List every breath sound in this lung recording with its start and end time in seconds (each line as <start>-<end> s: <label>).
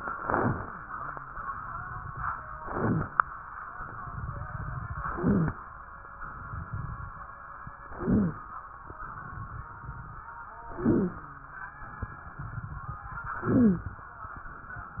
0.17-0.74 s: inhalation
0.17-0.74 s: crackles
2.56-3.13 s: inhalation
2.56-3.13 s: crackles
5.12-5.69 s: inhalation
5.12-5.69 s: wheeze
7.99-8.56 s: inhalation
7.99-8.56 s: wheeze
10.74-11.31 s: inhalation
10.74-11.31 s: wheeze
13.39-13.97 s: inhalation
13.39-13.97 s: wheeze